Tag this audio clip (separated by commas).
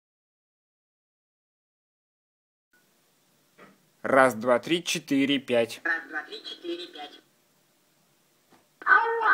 Speech